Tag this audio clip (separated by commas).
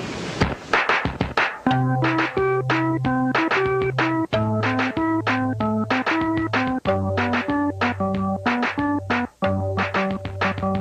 Harpsichord, Music